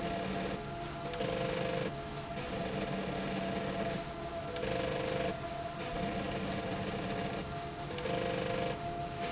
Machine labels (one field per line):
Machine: slide rail